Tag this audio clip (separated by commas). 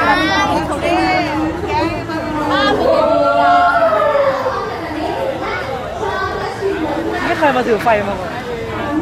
Speech